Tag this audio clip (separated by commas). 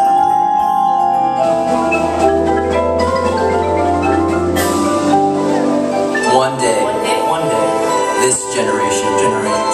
Music, Percussion, Speech